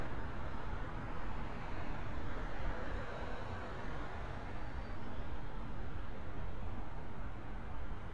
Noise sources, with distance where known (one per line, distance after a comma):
background noise